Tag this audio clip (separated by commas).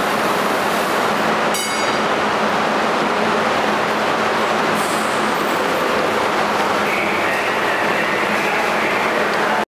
Vehicle